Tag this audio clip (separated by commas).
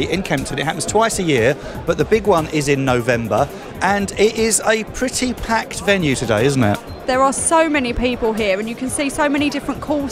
Speech, Music